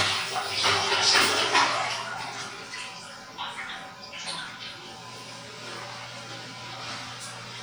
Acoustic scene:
restroom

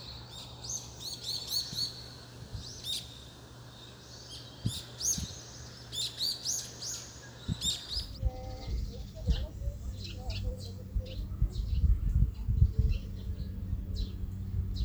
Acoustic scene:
park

